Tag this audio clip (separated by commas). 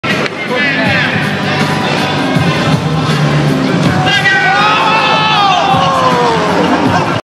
Speech, Music